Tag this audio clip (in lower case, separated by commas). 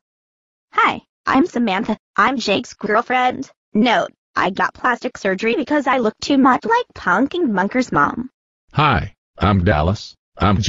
speech, inside a small room